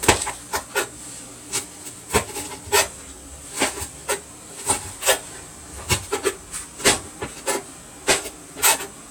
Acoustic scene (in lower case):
kitchen